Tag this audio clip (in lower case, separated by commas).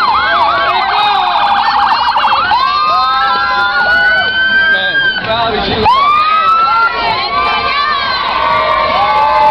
police car (siren), speech, emergency vehicle